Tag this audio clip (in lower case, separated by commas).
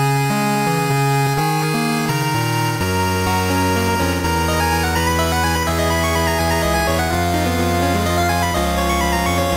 music